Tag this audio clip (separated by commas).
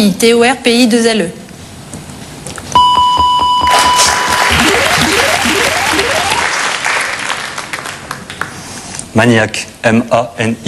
Speech